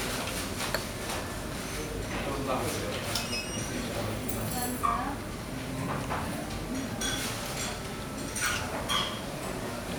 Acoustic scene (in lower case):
restaurant